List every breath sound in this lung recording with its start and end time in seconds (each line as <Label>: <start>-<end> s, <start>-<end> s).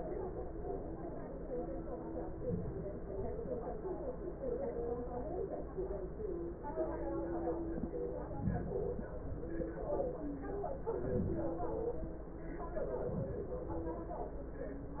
Inhalation: 10.55-11.59 s, 12.50-13.42 s
Exhalation: 11.61-12.26 s, 13.40-14.23 s